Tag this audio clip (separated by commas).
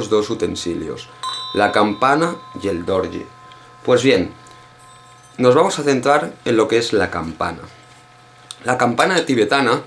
Speech